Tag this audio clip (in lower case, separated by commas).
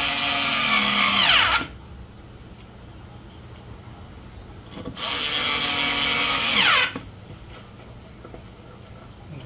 speech, inside a small room